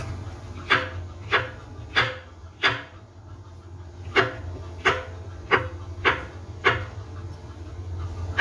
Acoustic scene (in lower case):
kitchen